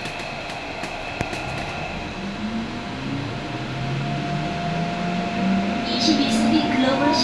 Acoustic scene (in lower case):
subway train